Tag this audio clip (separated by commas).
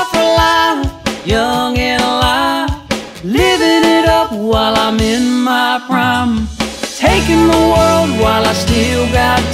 Independent music, Music